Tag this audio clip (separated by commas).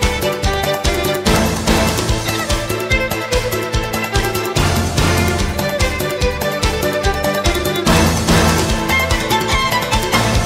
Music, Exciting music